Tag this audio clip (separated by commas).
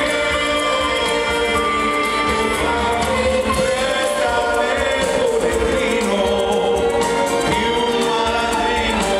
Music